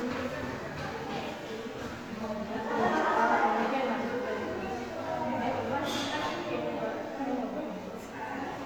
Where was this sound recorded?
in a crowded indoor space